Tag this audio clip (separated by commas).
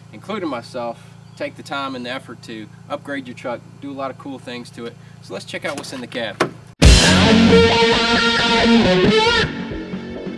Vehicle, Truck, Music, Speech